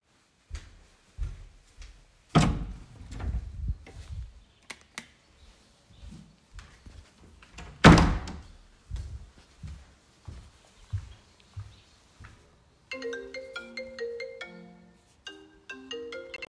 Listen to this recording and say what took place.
I wanted to get to the kitchen, opened the door to the kitchen, used the light switch to turn on the lights, closed the door behind me and then my phone began ringing in the kitchen.